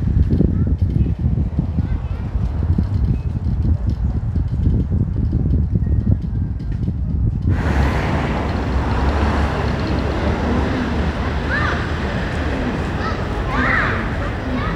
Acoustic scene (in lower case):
residential area